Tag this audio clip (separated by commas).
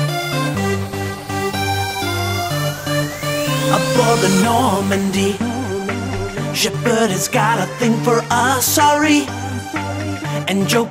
Music